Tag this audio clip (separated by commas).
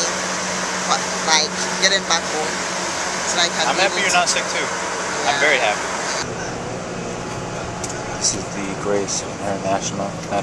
outside, urban or man-made, outside, rural or natural, Speech